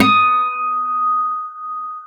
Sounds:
Plucked string instrument, Music, Acoustic guitar, Musical instrument, Guitar

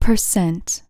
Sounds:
Human voice, Speech, woman speaking

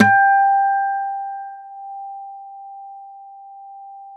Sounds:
Plucked string instrument, Musical instrument, Acoustic guitar, Guitar, Music

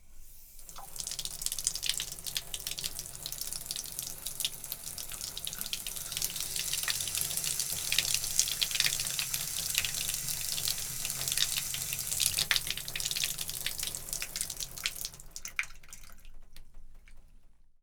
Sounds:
Bathtub (filling or washing), Domestic sounds

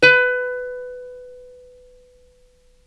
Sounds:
Musical instrument, Plucked string instrument, Music

